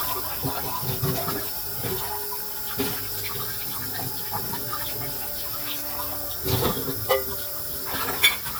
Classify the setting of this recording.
kitchen